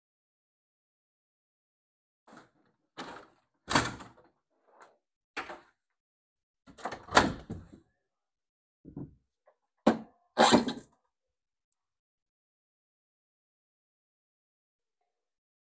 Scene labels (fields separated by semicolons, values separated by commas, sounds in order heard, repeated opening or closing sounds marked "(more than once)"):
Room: office; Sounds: window (more than once)